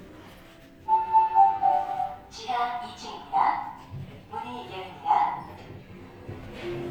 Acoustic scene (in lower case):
elevator